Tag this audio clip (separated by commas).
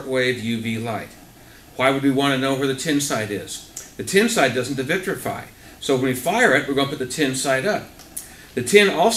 Speech